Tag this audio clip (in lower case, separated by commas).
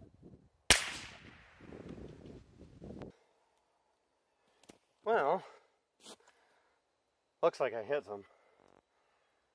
cap gun shooting